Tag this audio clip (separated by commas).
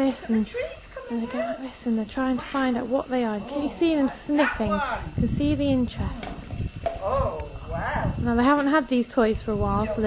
Speech